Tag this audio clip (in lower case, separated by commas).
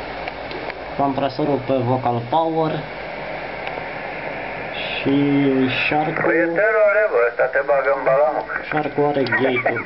radio, speech